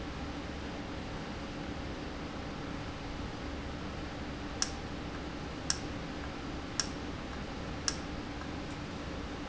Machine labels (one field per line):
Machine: valve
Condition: normal